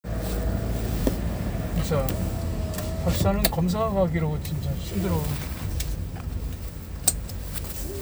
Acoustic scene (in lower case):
car